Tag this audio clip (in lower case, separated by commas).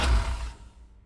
motor vehicle (road), car, vehicle, engine